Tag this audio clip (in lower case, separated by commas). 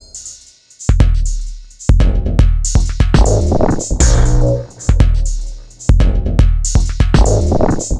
percussion, drum kit, music, musical instrument